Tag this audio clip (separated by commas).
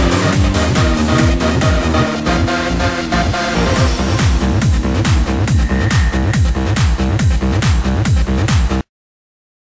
Music